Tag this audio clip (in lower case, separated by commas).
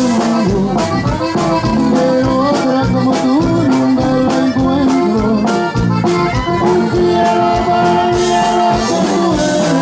music